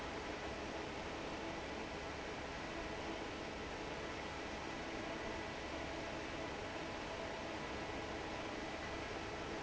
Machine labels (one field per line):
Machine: fan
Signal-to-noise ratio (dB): 6 dB